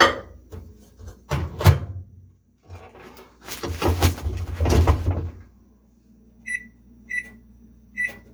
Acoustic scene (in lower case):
kitchen